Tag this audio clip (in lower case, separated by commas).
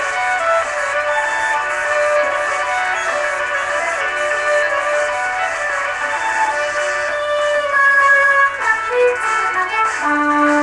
violin, musical instrument, music